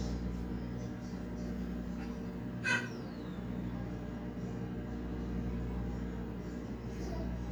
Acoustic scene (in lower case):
kitchen